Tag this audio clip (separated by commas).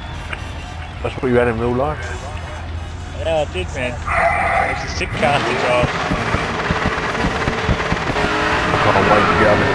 Car, auto racing